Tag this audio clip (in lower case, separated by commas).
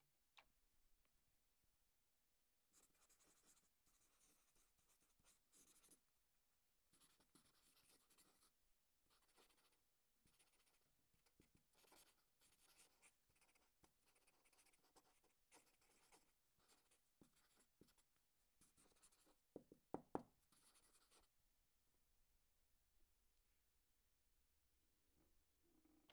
writing, domestic sounds